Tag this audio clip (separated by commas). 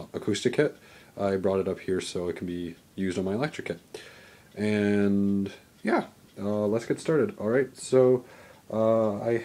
Speech